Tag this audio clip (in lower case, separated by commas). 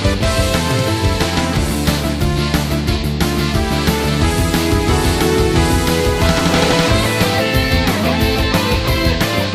music, funk